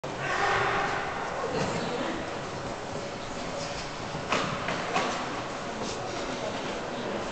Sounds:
speech

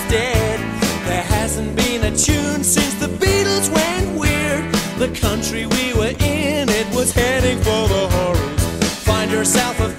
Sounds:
background music, music

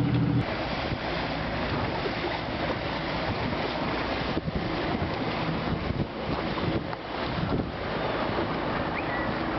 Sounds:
outside, rural or natural

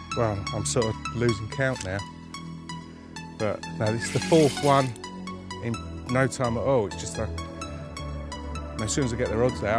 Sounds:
speech, music, outside, rural or natural

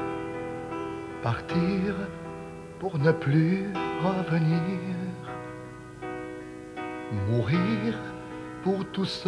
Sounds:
music

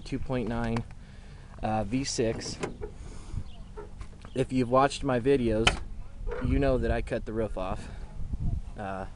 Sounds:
speech

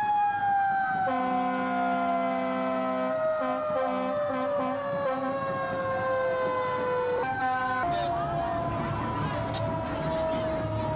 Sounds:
emergency vehicle, speech, fire truck (siren)

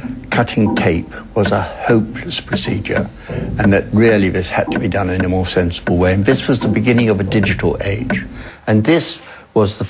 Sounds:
speech

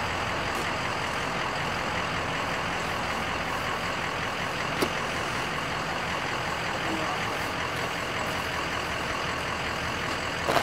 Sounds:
vehicle, car

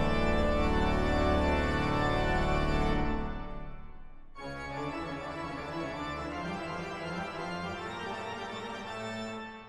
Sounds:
music

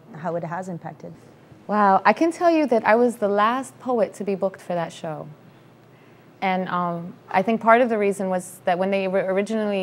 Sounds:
female speech, speech

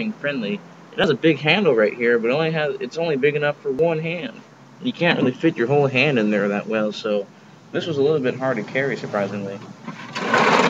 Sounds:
inside a small room, speech

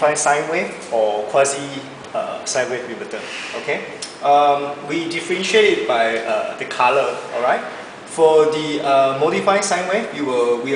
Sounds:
speech

